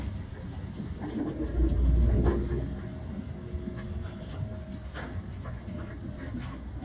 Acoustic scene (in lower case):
bus